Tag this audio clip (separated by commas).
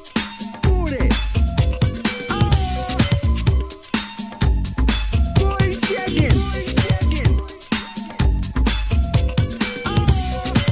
Music